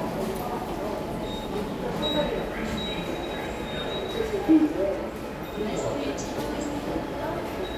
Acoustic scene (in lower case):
subway station